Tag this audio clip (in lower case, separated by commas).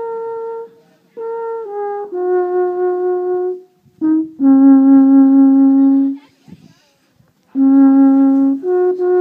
wind instrument